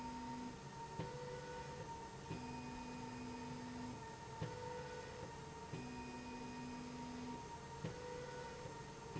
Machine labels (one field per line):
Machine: slide rail